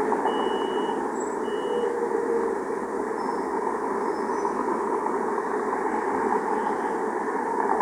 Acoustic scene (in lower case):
street